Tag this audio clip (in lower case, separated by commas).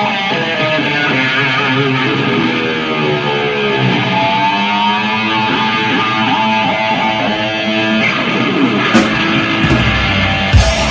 music, musical instrument, electric guitar, plucked string instrument, guitar